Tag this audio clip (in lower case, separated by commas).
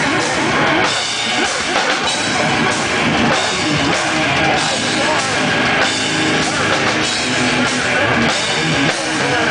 music